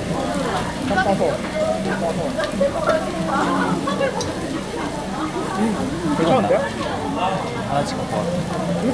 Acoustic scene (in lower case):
restaurant